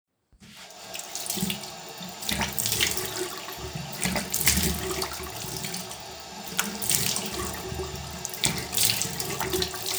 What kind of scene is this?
restroom